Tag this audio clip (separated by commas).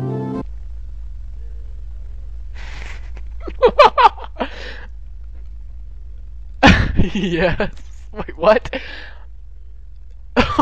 Music, Speech